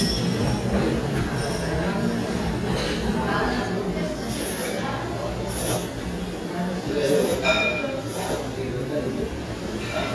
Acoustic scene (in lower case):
restaurant